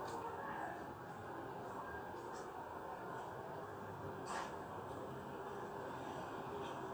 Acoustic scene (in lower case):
residential area